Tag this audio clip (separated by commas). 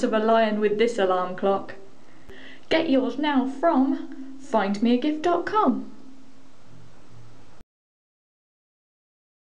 Speech